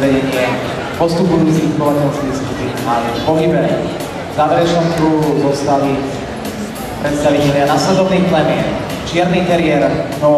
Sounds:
music
speech

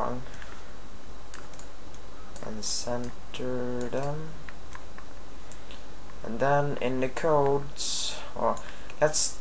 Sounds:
speech

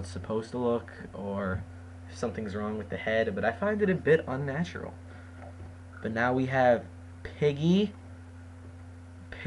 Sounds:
speech

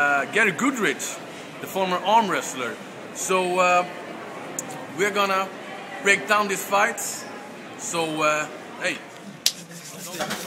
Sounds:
speech
inside a public space

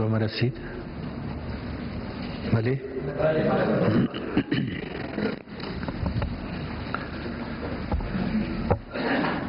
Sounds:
speech
man speaking

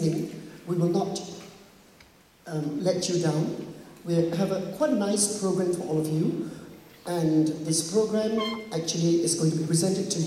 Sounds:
speech

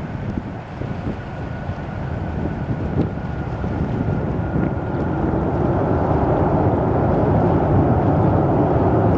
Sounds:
aircraft
vehicle
fixed-wing aircraft

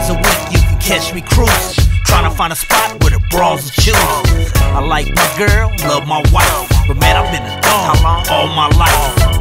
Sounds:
music

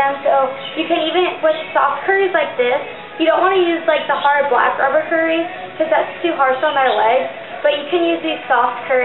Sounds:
inside a large room or hall
speech
music

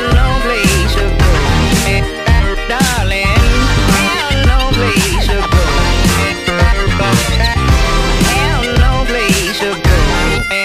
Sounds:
music

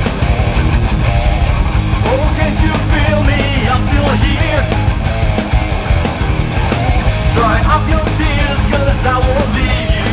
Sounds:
music

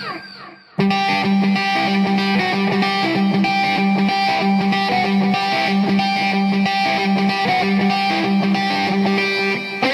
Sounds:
musical instrument
music
plucked string instrument
electric guitar
guitar

